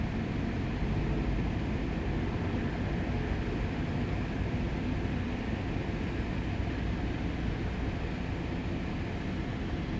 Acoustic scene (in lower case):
street